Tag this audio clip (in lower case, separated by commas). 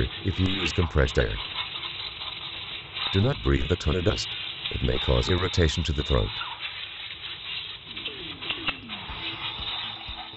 speech, inside a small room